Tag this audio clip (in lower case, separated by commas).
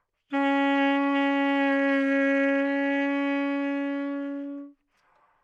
music, wind instrument, musical instrument